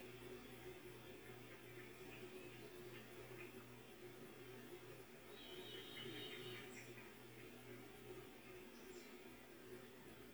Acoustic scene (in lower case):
park